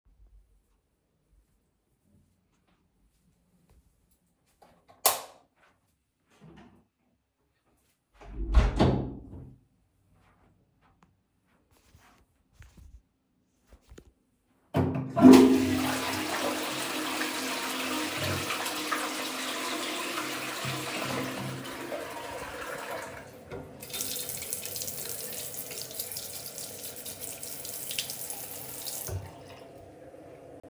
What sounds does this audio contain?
light switch, door, toilet flushing, running water